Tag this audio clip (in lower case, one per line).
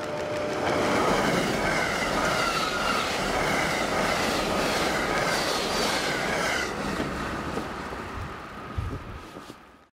vehicle
train